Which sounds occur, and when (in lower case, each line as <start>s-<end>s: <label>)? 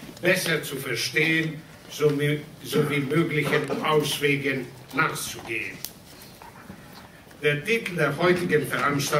0.0s-9.1s: background noise
0.1s-0.3s: generic impact sounds
0.2s-1.5s: male speech
0.4s-0.6s: generic impact sounds
1.4s-1.5s: generic impact sounds
1.9s-2.2s: generic impact sounds
2.0s-2.4s: male speech
2.7s-4.0s: generic impact sounds
2.7s-4.7s: male speech
5.0s-5.8s: male speech
5.7s-5.9s: generic impact sounds
6.1s-6.4s: surface contact
6.7s-7.4s: breathing
7.5s-9.1s: male speech
7.9s-7.9s: generic impact sounds